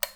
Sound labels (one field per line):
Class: switch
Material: plastic